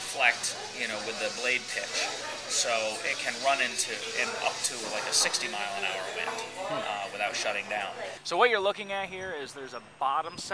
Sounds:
speech

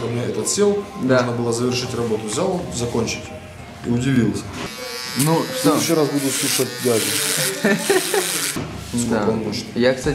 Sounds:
electric shaver

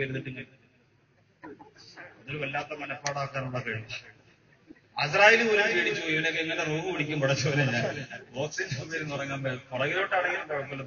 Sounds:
speech, man speaking, narration

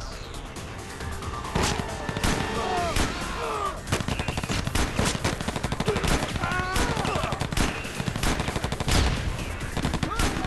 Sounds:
machine gun shooting

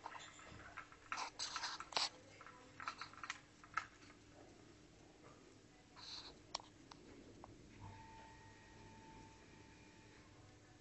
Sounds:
animal

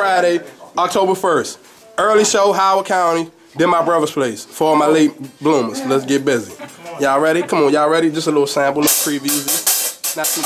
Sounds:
speech, music

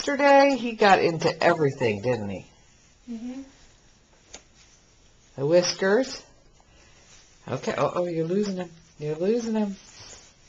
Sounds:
speech

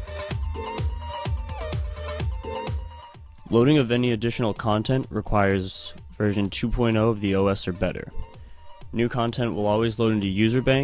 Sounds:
music, speech

